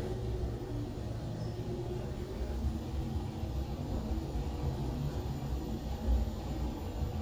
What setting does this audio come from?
elevator